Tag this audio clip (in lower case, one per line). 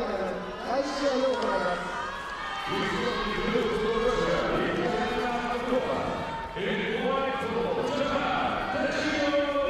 speech